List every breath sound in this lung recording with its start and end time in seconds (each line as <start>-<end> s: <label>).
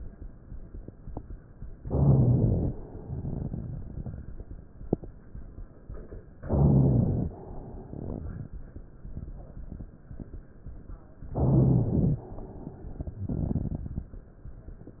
1.80-2.75 s: inhalation
1.80-2.75 s: rhonchi
2.85-4.65 s: exhalation
2.85-4.65 s: crackles
6.43-7.29 s: inhalation
6.43-7.29 s: rhonchi
7.40-8.73 s: exhalation
7.40-8.73 s: crackles
11.35-12.20 s: inhalation
11.35-12.20 s: rhonchi
12.29-14.19 s: exhalation
12.29-14.19 s: crackles